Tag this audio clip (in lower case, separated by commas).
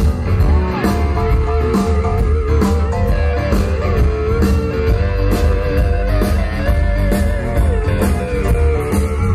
rock and roll, musical instrument, blues, music, guitar, plucked string instrument